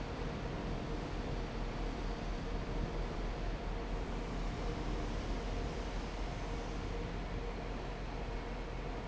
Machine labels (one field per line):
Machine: fan